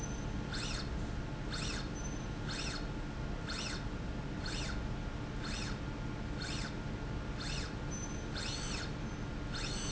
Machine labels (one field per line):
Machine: slide rail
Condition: normal